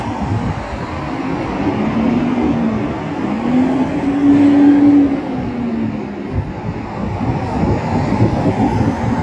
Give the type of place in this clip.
street